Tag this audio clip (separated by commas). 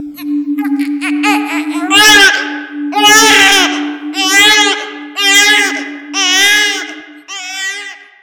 Crying, Human voice